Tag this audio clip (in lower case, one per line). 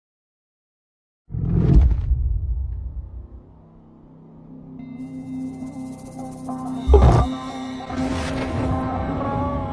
music
swoosh